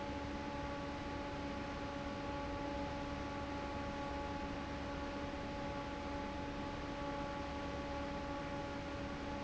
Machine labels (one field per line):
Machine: fan